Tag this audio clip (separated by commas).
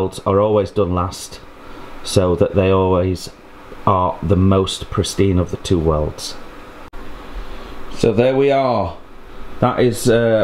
arc welding